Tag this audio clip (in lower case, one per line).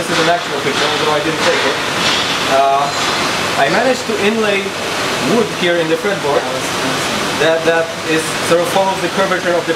speech